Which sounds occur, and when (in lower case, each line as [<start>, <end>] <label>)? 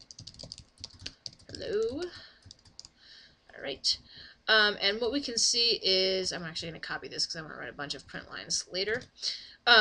[0.00, 0.75] computer keyboard
[0.00, 9.80] mechanisms
[0.85, 1.16] computer keyboard
[0.89, 1.29] breathing
[1.30, 2.13] computer keyboard
[1.56, 2.17] woman speaking
[2.05, 2.53] breathing
[2.47, 2.96] computer keyboard
[3.00, 3.44] breathing
[3.55, 4.07] woman speaking
[4.10, 4.44] breathing
[4.54, 9.14] woman speaking
[7.96, 8.21] computer keyboard
[8.94, 9.17] computer keyboard
[9.23, 9.68] breathing